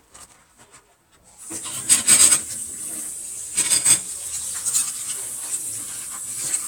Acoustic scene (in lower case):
kitchen